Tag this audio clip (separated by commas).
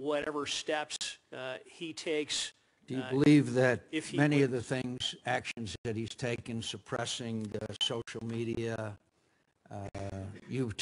Speech